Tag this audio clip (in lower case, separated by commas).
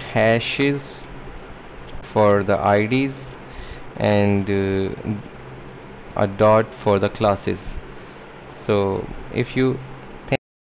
inside a small room, speech